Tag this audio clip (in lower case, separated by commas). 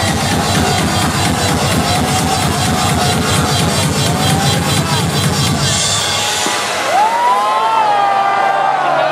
exciting music, funk, pop music, music, speech